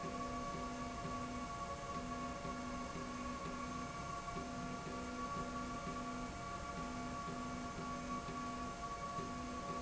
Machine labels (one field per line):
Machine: slide rail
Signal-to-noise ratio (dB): 0 dB